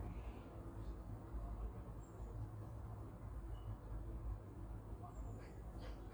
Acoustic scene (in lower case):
park